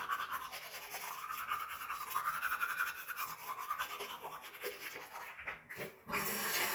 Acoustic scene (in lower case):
restroom